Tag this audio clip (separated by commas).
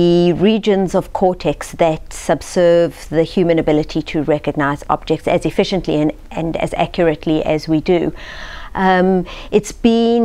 Speech